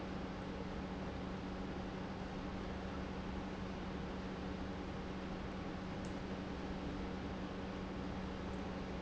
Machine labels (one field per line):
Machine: pump